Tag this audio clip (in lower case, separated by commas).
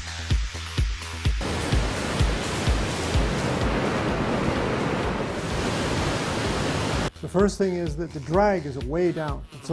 vehicle, speech, car, music